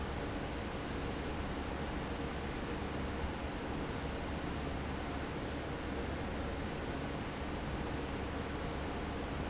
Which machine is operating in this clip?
fan